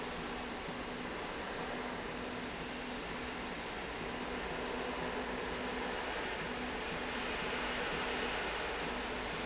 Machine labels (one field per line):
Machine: slide rail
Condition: normal